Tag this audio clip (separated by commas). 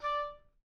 woodwind instrument, Musical instrument, Music